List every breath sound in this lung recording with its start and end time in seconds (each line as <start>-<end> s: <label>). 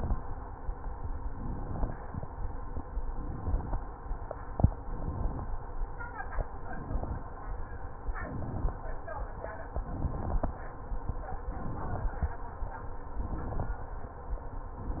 1.24-1.96 s: inhalation
1.24-1.96 s: crackles
3.08-3.80 s: inhalation
3.08-3.80 s: crackles
4.76-5.48 s: inhalation
4.76-5.48 s: crackles
6.55-7.27 s: inhalation
6.55-7.27 s: crackles
8.11-8.83 s: inhalation
8.11-8.83 s: crackles
9.77-10.49 s: inhalation
9.77-10.49 s: crackles
11.53-12.31 s: inhalation
11.53-12.31 s: crackles
13.12-13.80 s: inhalation
13.12-13.80 s: crackles
14.74-15.00 s: inhalation
14.74-15.00 s: crackles